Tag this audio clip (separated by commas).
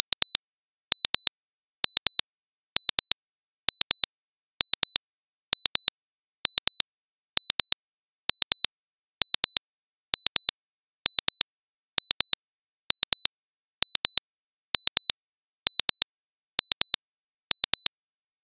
Alarm